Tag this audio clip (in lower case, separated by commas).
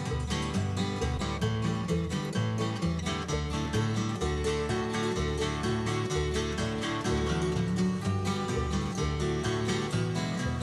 music, guitar, musical instrument